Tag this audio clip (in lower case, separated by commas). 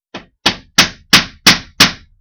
tools, hammer